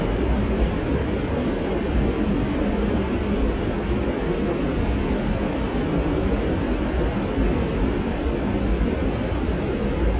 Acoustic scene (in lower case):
subway train